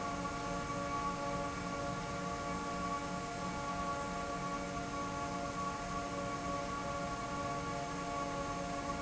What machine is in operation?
fan